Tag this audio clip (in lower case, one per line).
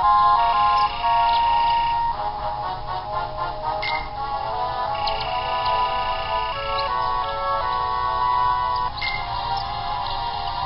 music